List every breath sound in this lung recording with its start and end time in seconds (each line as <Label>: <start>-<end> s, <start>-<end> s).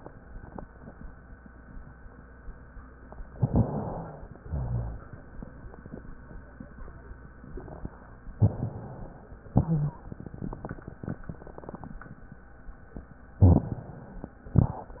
Inhalation: 3.34-4.44 s, 8.38-9.50 s, 13.42-14.52 s
Exhalation: 4.44-5.30 s, 9.50-10.60 s, 14.52-15.00 s
Wheeze: 9.50-9.98 s
Rhonchi: 4.44-5.00 s, 13.40-13.70 s
Crackles: 3.34-3.66 s, 14.54-14.84 s